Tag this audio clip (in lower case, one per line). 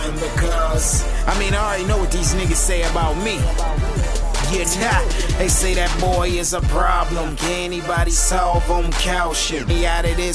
blues
music